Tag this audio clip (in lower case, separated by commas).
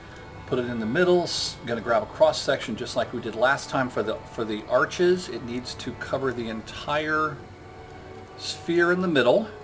music, speech